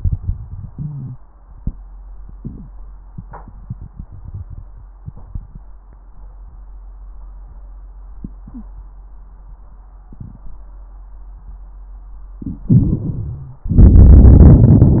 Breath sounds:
12.65-13.68 s: inhalation
12.65-13.68 s: crackles
13.69-15.00 s: exhalation
13.69-15.00 s: crackles

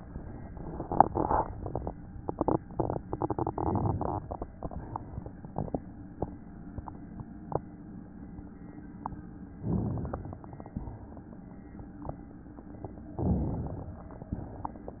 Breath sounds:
9.66-10.68 s: inhalation
10.72-11.23 s: exhalation
13.17-14.19 s: inhalation
14.27-14.78 s: exhalation

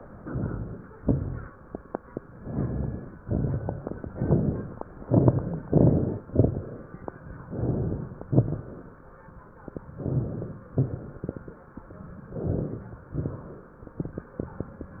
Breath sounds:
0.15-0.93 s: inhalation
0.15-0.93 s: crackles
1.02-1.48 s: exhalation
1.02-1.48 s: crackles
2.39-3.17 s: inhalation
2.39-3.17 s: crackles
3.21-4.08 s: exhalation
3.21-4.08 s: crackles
4.14-4.92 s: inhalation
4.14-4.92 s: crackles
4.99-5.58 s: exhalation
4.99-5.58 s: crackles
5.67-6.26 s: inhalation
5.67-6.26 s: crackles
6.28-6.87 s: exhalation
6.28-6.87 s: crackles
7.46-8.18 s: inhalation
7.46-8.18 s: crackles
8.27-8.99 s: exhalation
8.27-8.99 s: crackles
9.96-10.68 s: inhalation
9.96-10.68 s: crackles
10.78-11.50 s: exhalation
10.78-11.50 s: crackles
12.29-13.02 s: inhalation
12.29-13.02 s: crackles
13.13-13.85 s: exhalation
13.13-13.85 s: crackles

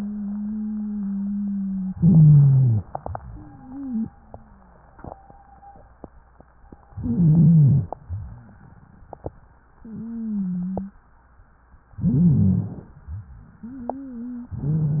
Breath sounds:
0.00-1.92 s: wheeze
1.97-2.85 s: inhalation
1.97-2.85 s: wheeze
3.00-4.87 s: wheeze
6.98-7.91 s: inhalation
6.98-7.91 s: wheeze
8.06-8.44 s: wheeze
9.81-10.98 s: wheeze
12.01-12.94 s: inhalation
12.01-12.94 s: wheeze
13.05-14.60 s: wheeze

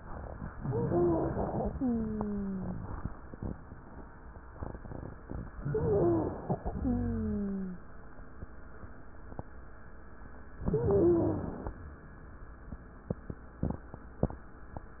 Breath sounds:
0.63-1.61 s: inhalation
0.63-1.61 s: wheeze
1.69-2.68 s: exhalation
1.69-2.68 s: wheeze
5.60-6.59 s: inhalation
5.60-6.59 s: wheeze
6.75-7.86 s: exhalation
6.75-7.86 s: wheeze
10.68-11.63 s: wheeze
10.68-11.79 s: inhalation

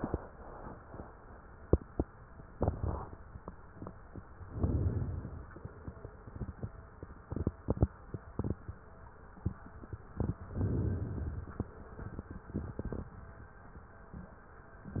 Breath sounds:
4.50-5.50 s: inhalation
10.54-11.54 s: inhalation

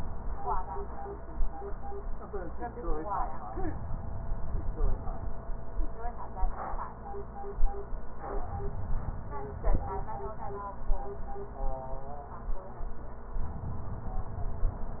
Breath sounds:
3.49-5.33 s: inhalation
8.49-10.35 s: inhalation

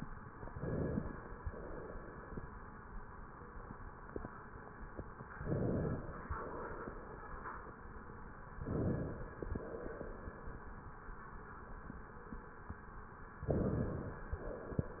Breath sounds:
0.38-1.40 s: inhalation
1.44-2.46 s: exhalation
5.31-6.33 s: inhalation
6.37-7.39 s: exhalation
8.43-9.45 s: inhalation
9.51-10.53 s: exhalation
13.34-14.36 s: inhalation
14.40-15.00 s: exhalation

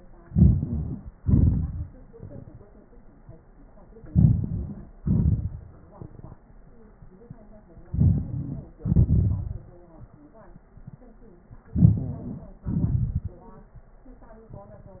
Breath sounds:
0.22-0.92 s: inhalation
1.19-1.88 s: exhalation
4.11-4.80 s: inhalation
5.01-5.53 s: exhalation
7.88-8.31 s: inhalation
8.80-9.49 s: exhalation
11.80-12.49 s: inhalation
12.70-13.38 s: exhalation

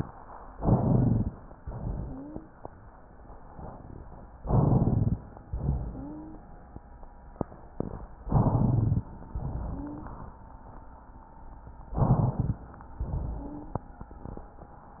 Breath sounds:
0.51-1.35 s: inhalation
0.51-1.35 s: crackles
1.61-2.51 s: exhalation
1.96-2.51 s: wheeze
4.40-5.24 s: inhalation
4.40-5.24 s: crackles
5.48-6.45 s: exhalation
5.83-6.45 s: wheeze
8.25-9.09 s: inhalation
8.25-9.09 s: crackles
9.34-10.34 s: exhalation
9.68-10.15 s: wheeze
12.01-12.64 s: inhalation
12.01-12.64 s: crackles
13.04-13.89 s: exhalation
13.40-13.89 s: wheeze

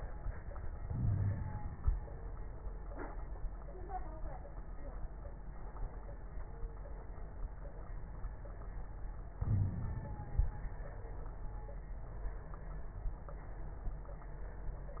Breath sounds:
0.84-1.33 s: wheeze
0.84-1.69 s: inhalation
9.42-10.45 s: inhalation
9.47-9.97 s: wheeze

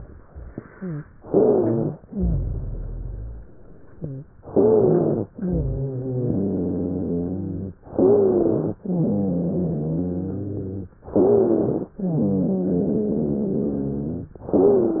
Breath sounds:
0.70-1.05 s: rhonchi
1.14-1.98 s: inhalation
1.14-1.98 s: wheeze
2.07-3.48 s: exhalation
2.07-3.48 s: rhonchi
3.95-4.30 s: rhonchi
4.46-5.29 s: inhalation
4.46-5.29 s: wheeze
5.37-7.75 s: exhalation
5.37-7.75 s: wheeze
7.89-8.73 s: inhalation
7.89-8.73 s: wheeze
8.80-10.96 s: exhalation
8.80-10.96 s: wheeze
11.14-11.97 s: inhalation
11.14-11.97 s: wheeze
12.03-14.35 s: exhalation
12.03-14.35 s: wheeze
14.42-15.00 s: inhalation
14.42-15.00 s: wheeze

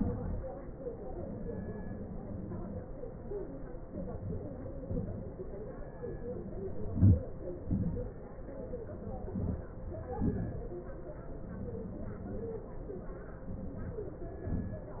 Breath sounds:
6.78-7.32 s: inhalation
7.66-8.19 s: exhalation
9.37-9.81 s: inhalation
10.25-10.69 s: exhalation

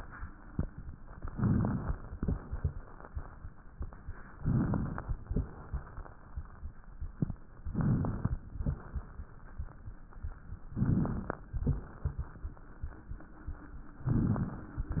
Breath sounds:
1.31-2.07 s: inhalation
1.31-2.07 s: crackles
4.38-5.14 s: inhalation
4.38-5.14 s: crackles
7.68-8.45 s: inhalation
7.68-8.45 s: crackles
10.70-11.46 s: inhalation
10.70-11.46 s: crackles
14.10-14.86 s: inhalation
14.10-14.86 s: crackles

